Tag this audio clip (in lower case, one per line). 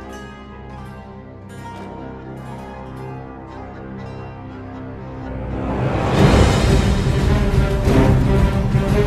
music